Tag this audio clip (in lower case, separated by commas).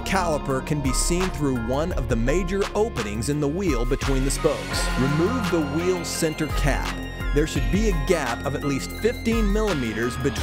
speech, music